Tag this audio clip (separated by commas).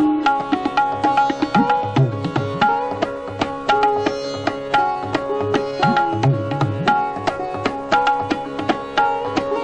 Sitar, Music